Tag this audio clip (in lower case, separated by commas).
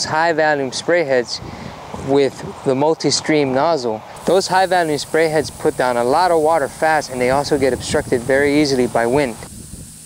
speech, spray